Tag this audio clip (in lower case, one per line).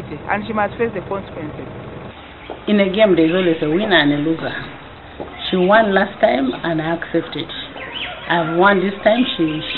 cluck